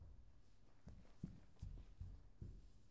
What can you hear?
footsteps